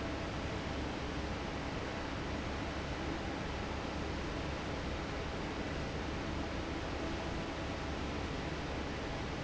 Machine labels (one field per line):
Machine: fan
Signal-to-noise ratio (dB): -6 dB